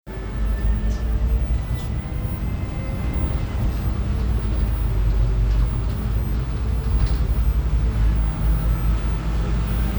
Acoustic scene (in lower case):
bus